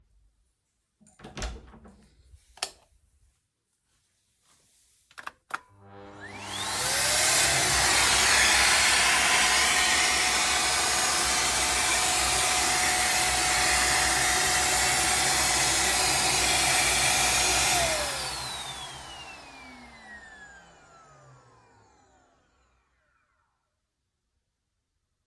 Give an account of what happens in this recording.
I opened the storage room, turned on the light and turned on the vacuum cleaner. Then turned it off.